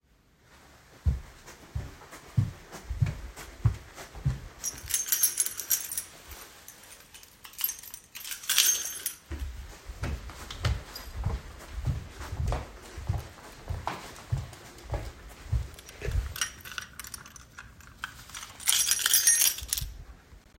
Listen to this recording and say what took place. I walk through my hallway and fidget with my keys as I walked